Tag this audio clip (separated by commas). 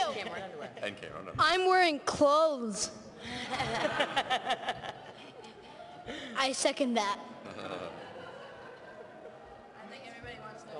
Speech, Female speech, Male speech, Narration, kid speaking